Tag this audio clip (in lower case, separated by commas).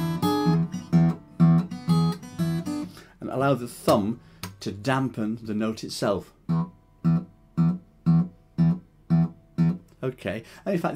inside a small room, speech, acoustic guitar, musical instrument, guitar, music